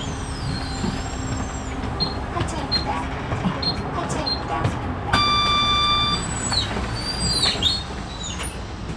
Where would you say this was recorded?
on a bus